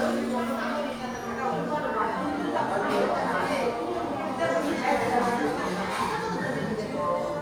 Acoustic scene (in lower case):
crowded indoor space